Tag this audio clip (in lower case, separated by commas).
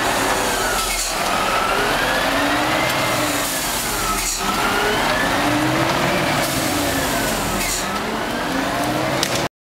truck, vehicle